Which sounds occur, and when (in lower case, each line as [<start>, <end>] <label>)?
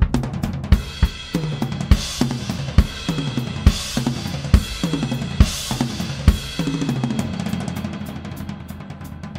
[0.04, 9.35] music